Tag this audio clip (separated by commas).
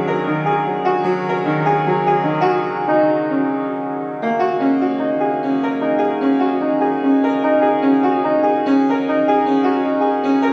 Music